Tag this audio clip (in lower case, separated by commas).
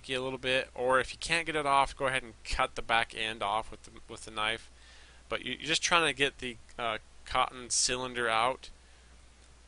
speech